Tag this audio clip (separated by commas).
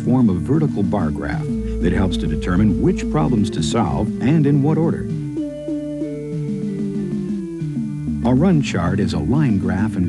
Music, Speech